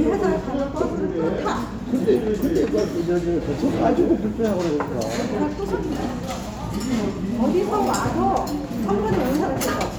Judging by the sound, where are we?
in a restaurant